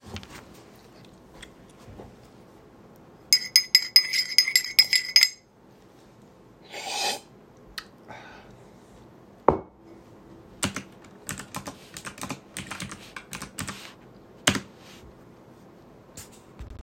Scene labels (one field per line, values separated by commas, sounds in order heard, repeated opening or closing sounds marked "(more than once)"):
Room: office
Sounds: cutlery and dishes, keyboard typing